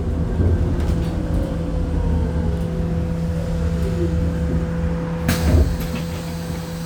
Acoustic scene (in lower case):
bus